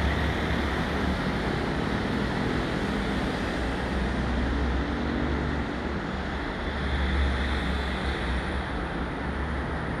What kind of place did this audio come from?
street